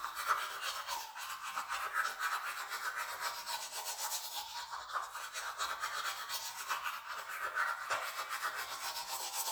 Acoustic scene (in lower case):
restroom